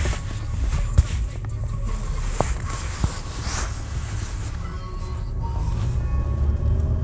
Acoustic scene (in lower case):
car